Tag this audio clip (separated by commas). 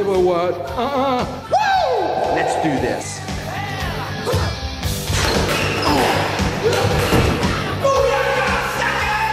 playing squash